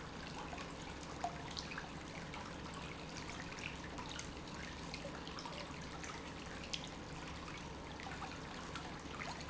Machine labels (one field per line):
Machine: pump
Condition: normal